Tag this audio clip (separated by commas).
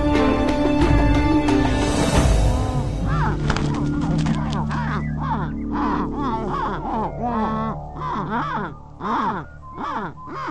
Music, Bird